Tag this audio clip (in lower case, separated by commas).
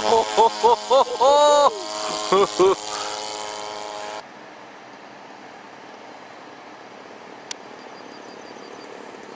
wind